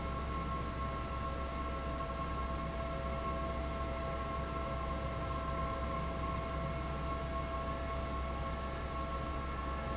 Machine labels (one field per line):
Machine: fan